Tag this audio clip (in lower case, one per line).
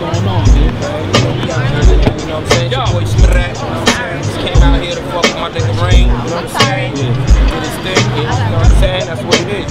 music
speech